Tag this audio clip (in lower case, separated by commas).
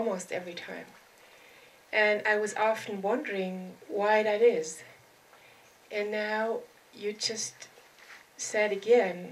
speech